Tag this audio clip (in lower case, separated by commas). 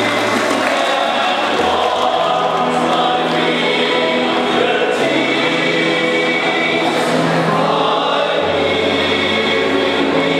male singing, music, choir